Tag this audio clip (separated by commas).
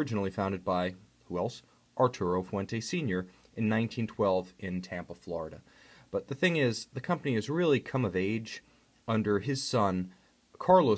Speech